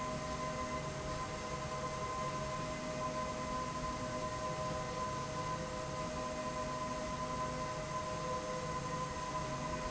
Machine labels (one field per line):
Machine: slide rail